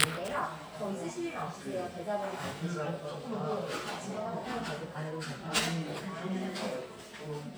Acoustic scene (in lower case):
crowded indoor space